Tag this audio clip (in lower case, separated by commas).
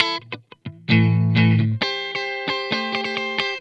musical instrument, electric guitar, guitar, plucked string instrument, music